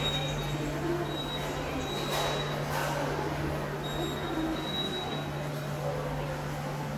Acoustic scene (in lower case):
subway station